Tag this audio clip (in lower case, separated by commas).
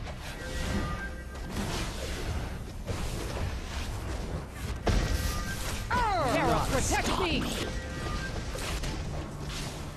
speech